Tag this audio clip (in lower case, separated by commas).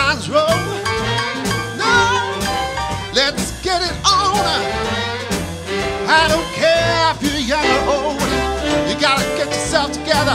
swing music, music